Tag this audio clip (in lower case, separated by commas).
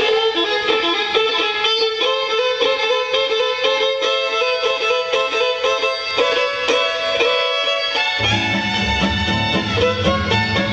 fiddle, bowed string instrument